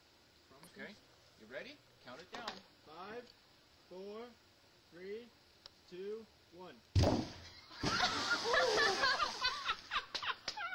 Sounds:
speech

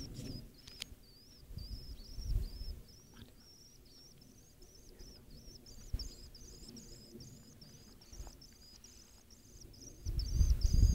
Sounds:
barn swallow calling

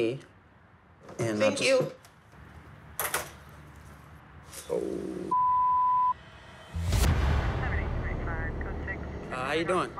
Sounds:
speech

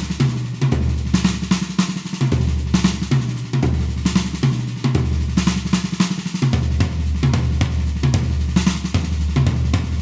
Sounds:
drum
music

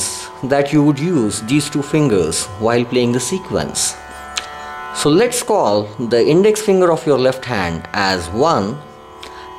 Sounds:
speech
music

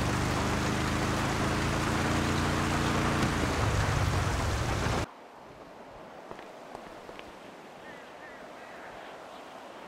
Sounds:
speech
car
vehicle

